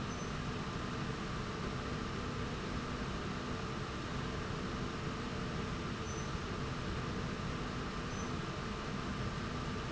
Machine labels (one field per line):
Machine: slide rail